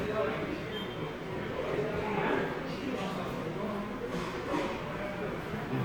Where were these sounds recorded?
in a subway station